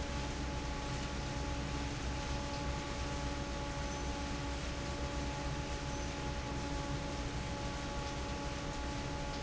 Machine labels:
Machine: fan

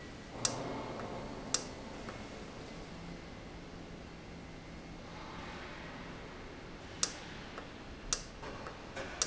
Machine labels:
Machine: valve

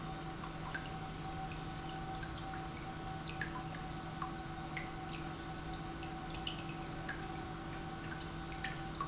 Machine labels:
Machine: pump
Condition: normal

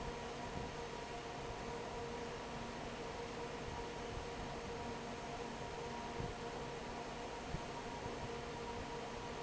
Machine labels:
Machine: fan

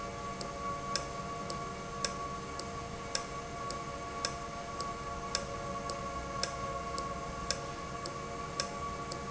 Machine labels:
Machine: valve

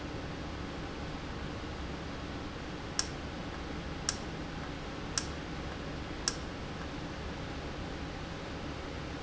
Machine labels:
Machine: valve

